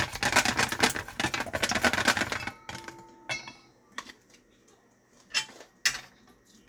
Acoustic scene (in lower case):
kitchen